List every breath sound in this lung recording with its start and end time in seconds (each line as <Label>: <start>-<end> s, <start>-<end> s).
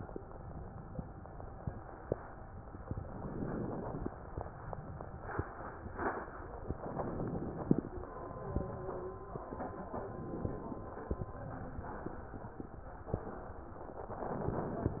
Inhalation: 2.87-4.08 s, 6.70-7.91 s, 10.02-11.23 s